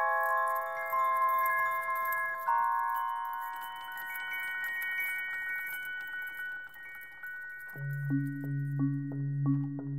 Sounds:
Synthesizer, Music

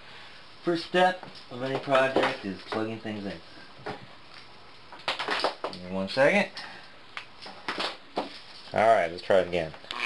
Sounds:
Speech

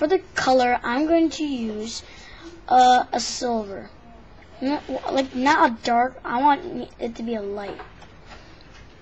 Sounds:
Speech

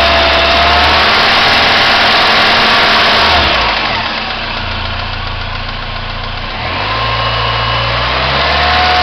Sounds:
revving, Idling, Medium engine (mid frequency), Engine, Vehicle

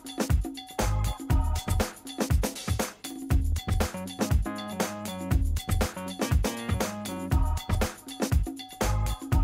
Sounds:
Music

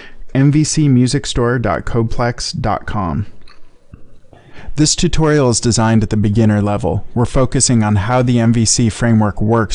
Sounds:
Speech

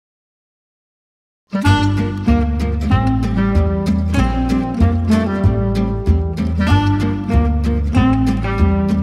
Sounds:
Music, inside a large room or hall, Musical instrument, Plucked string instrument, Guitar

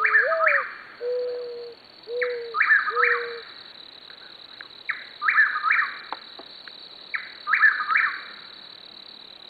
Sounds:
Coo, Animal, Bird

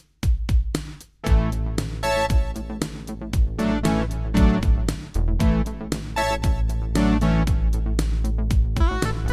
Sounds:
playing synthesizer

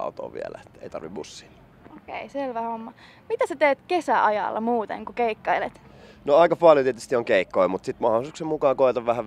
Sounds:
Speech

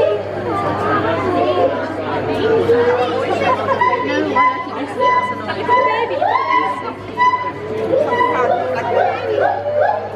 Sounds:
gibbon howling

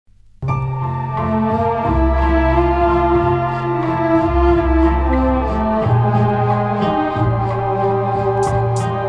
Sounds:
Electronic music, Music

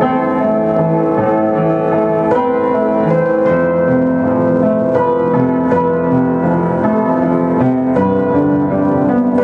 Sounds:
Music

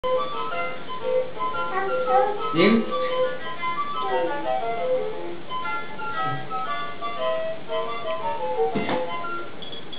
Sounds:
inside a small room, Child speech, Speech, Music

